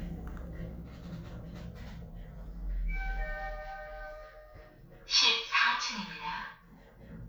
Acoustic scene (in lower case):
elevator